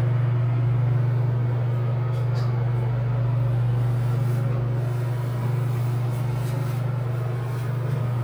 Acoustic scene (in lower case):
elevator